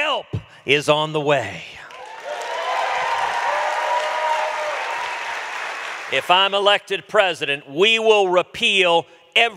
A man yells followed by a thump and a cheering crowd